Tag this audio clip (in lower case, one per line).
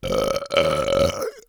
eructation